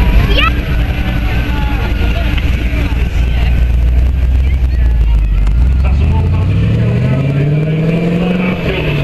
A crowd is talking a man talks over a loudspeaker and a car speeds away